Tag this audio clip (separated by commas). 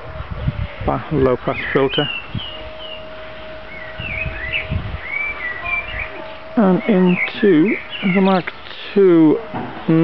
Speech, outside, rural or natural